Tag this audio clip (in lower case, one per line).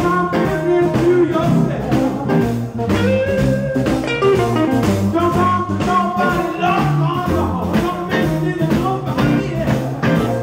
singing
blues
guitar
music